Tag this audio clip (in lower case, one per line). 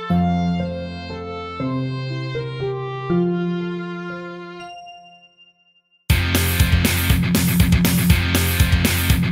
rock and roll
pop music
funk
grunge
music
punk rock